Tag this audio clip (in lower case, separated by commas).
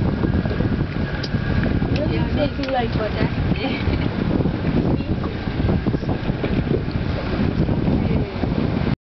speech, vehicle